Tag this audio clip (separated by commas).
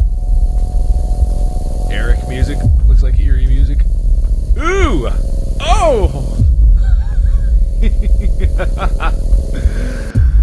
Music, Speech